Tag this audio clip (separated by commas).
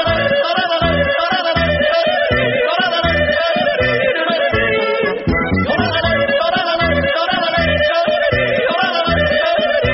yodelling